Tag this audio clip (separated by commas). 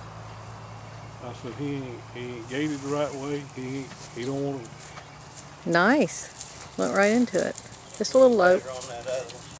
Clip-clop, Speech, Animal, Horse